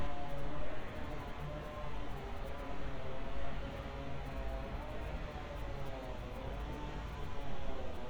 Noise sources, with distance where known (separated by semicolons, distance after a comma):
unidentified powered saw